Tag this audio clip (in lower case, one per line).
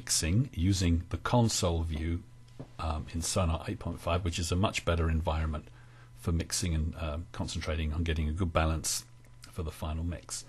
speech